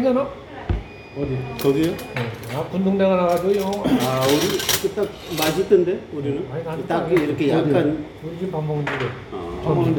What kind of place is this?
restaurant